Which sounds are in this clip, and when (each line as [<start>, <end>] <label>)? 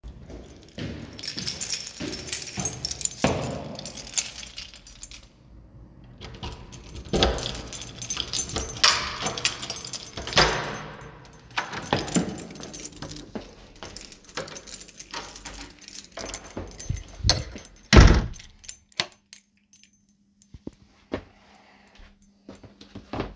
[0.17, 3.53] footsteps
[1.07, 5.36] keys
[6.20, 12.53] door
[6.89, 19.93] keys
[12.95, 14.11] footsteps
[17.77, 18.34] door
[18.61, 19.20] light switch
[21.09, 23.36] footsteps